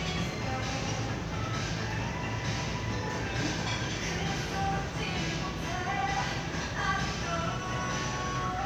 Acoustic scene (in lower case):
crowded indoor space